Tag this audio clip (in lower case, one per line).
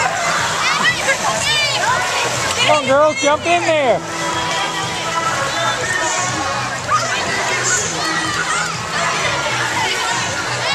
music
speech